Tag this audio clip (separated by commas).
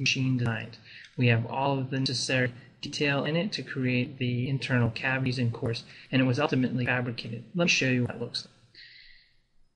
Speech